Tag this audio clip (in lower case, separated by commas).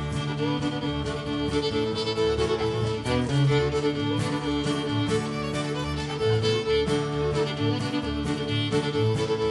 music, musical instrument, fiddle